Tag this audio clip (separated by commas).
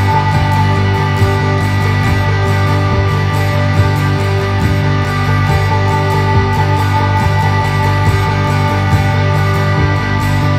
Music